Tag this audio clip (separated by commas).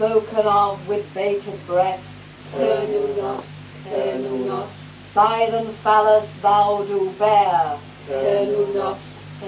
Mantra